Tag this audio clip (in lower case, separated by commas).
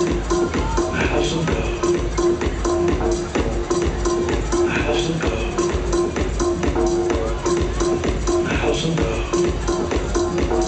music, crowd